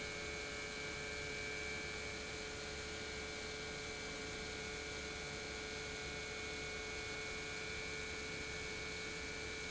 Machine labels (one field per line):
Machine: pump